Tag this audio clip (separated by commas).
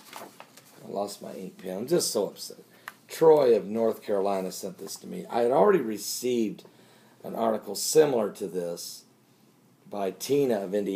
Speech